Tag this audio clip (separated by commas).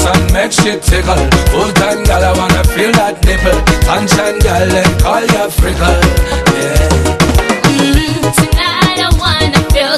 Music, Folk music